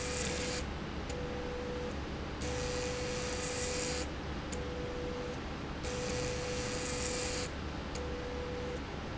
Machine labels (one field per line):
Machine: slide rail